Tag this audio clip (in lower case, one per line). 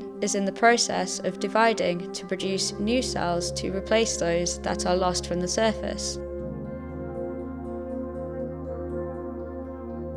music
speech